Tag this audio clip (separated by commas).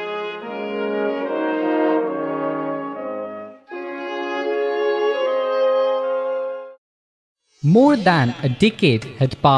Trombone, Brass instrument